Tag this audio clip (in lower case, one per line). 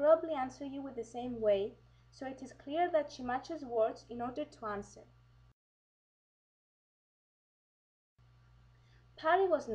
speech